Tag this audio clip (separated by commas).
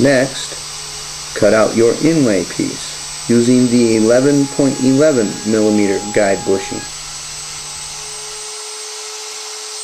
Speech, Tools, Power tool